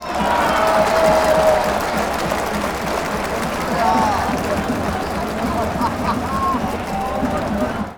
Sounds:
Crowd, Human group actions

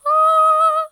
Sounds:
Female singing, Human voice, Singing

